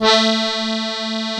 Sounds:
Musical instrument, Music, Accordion

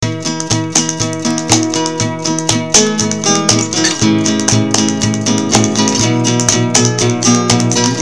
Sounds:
Plucked string instrument, Acoustic guitar, Music, Guitar, Musical instrument

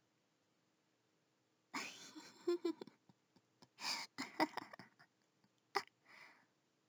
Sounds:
Laughter, Human voice, chortle

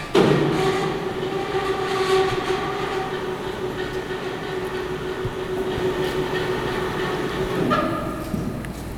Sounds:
Mechanisms

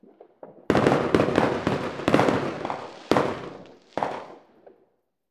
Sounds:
Explosion, Fireworks

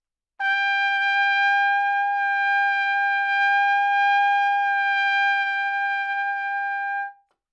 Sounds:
Musical instrument, Brass instrument, Trumpet, Music

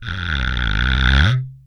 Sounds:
Wood

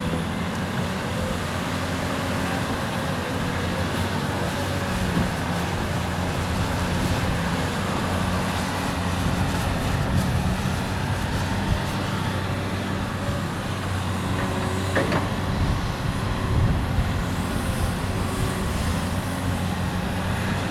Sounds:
Vehicle, Truck, Motor vehicle (road)

